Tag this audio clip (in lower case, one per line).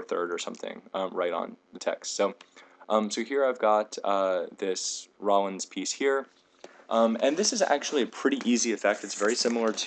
speech